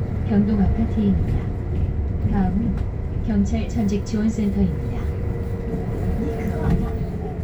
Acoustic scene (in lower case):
bus